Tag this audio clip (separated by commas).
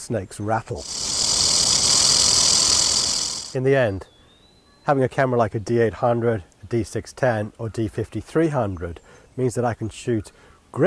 Speech, outside, rural or natural, Animal, Bird